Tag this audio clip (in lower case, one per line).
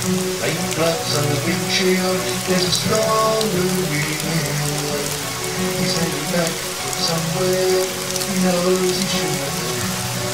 musical instrument
music
guitar
acoustic guitar